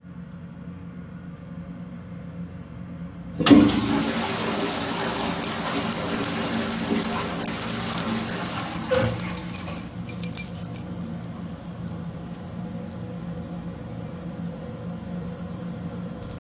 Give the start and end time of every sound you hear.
3.3s-9.6s: toilet flushing
4.4s-14.3s: keys

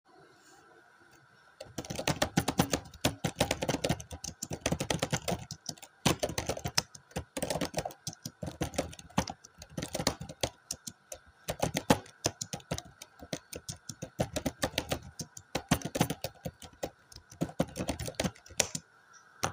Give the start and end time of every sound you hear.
1.7s-18.8s: keyboard typing

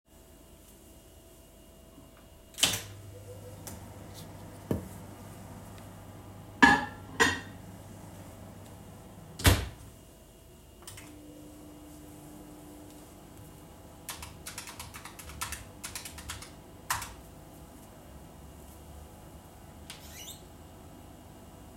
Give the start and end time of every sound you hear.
2.6s-21.8s: microwave
6.6s-7.5s: cutlery and dishes
14.1s-17.2s: keyboard typing
19.8s-20.5s: window

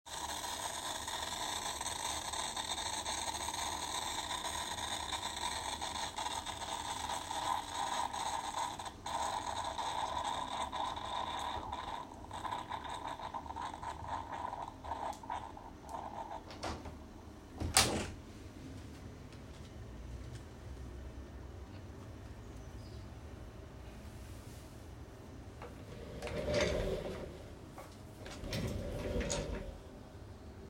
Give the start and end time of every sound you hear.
0.0s-16.7s: coffee machine
17.2s-18.2s: window

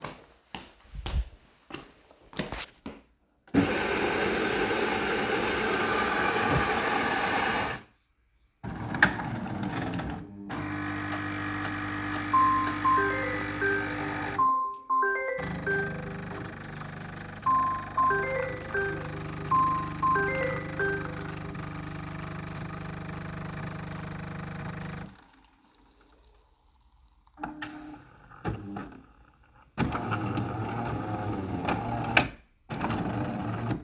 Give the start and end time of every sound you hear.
0.0s-3.5s: footsteps
3.4s-7.9s: coffee machine
8.6s-33.8s: coffee machine
12.2s-16.3s: phone ringing
17.4s-21.3s: phone ringing

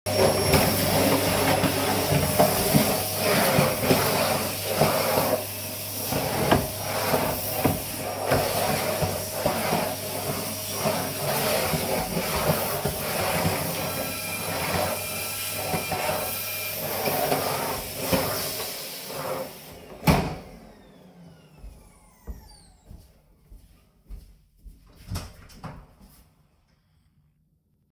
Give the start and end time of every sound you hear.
0.0s-23.7s: vacuum cleaner
13.7s-16.9s: bell ringing
21.5s-25.0s: footsteps
24.9s-26.2s: door

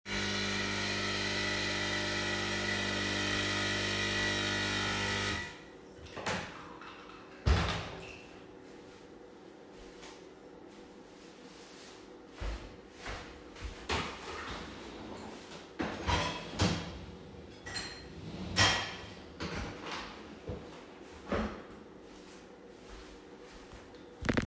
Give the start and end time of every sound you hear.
0.0s-5.8s: coffee machine
6.1s-6.5s: door
7.4s-8.0s: door
11.7s-13.9s: footsteps
15.8s-19.1s: cutlery and dishes

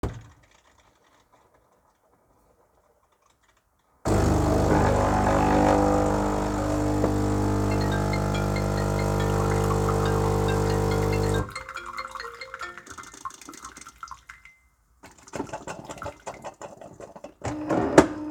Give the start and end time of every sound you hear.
4.0s-18.3s: coffee machine
7.6s-12.9s: phone ringing

